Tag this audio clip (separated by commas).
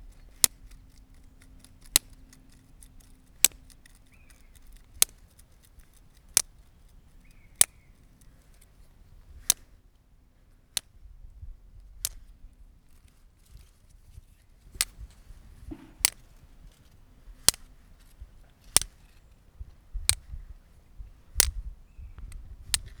Tick